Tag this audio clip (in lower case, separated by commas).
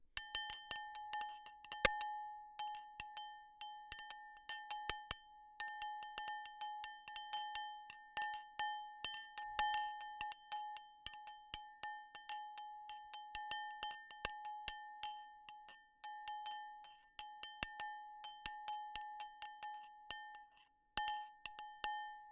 glass, chink